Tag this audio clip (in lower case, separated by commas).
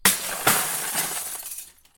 crushing, glass, shatter